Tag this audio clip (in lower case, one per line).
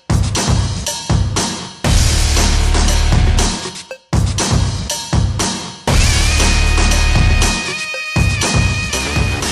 music